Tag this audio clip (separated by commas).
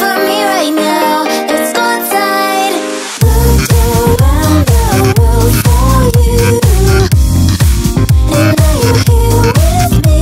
Dance music, Music